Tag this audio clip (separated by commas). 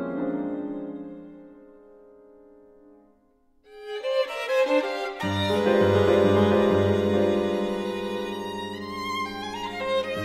Music